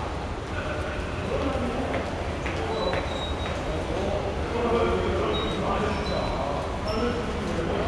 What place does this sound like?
subway station